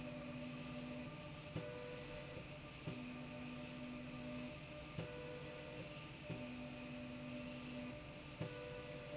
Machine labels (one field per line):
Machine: slide rail